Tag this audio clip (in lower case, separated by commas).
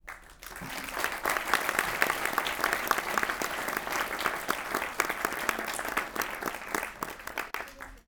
human group actions, applause